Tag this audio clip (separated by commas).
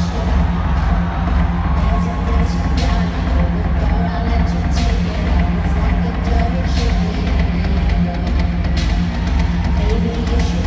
Music